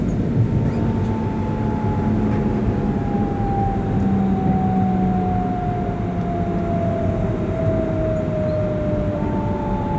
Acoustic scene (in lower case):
subway train